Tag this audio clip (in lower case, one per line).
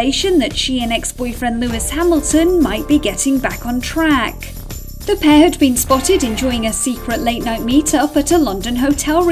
speech
music